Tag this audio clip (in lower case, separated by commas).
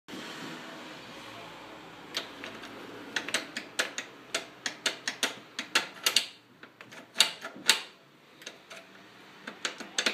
inside a small room